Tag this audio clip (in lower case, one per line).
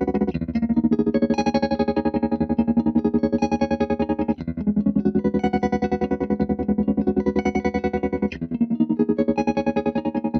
music